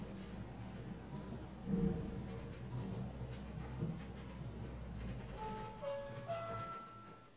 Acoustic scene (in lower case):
elevator